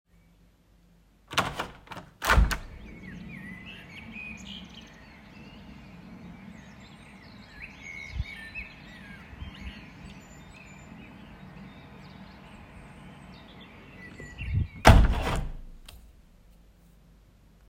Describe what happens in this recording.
I opened the window. Birds were singing. I closed the window shortly after.